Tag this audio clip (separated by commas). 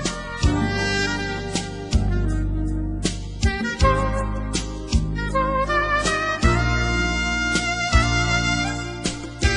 Music